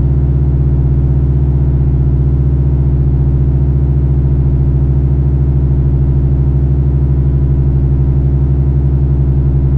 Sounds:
Harmonic

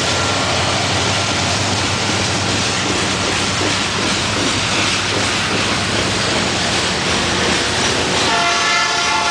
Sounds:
Rail transport, train wagon, Train horn, Train, Clickety-clack

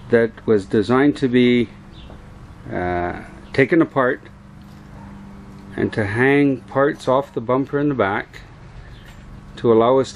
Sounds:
Speech

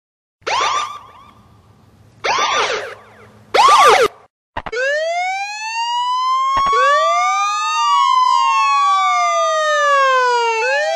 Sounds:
Siren

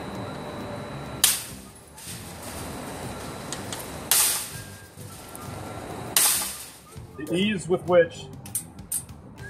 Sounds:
Speech

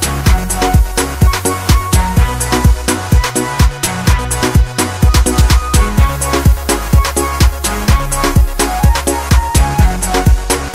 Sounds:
Afrobeat

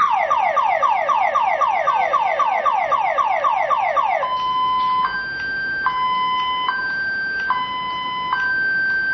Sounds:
Ambulance (siren), Car alarm, Emergency vehicle, Siren

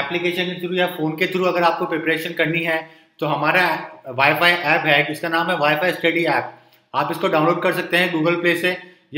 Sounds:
Speech

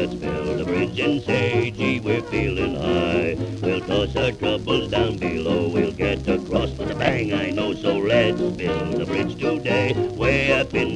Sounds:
Music, Radio, Orchestra

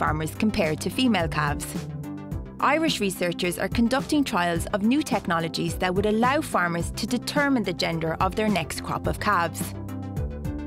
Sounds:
Speech, Music

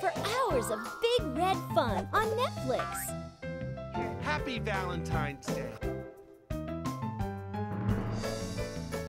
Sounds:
Music, Speech

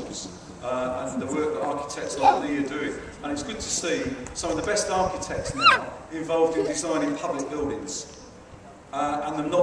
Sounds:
Speech

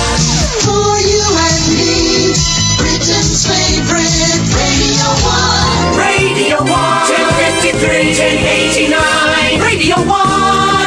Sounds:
Music, Exciting music

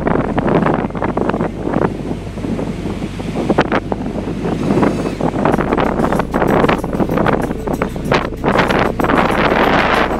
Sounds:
Car

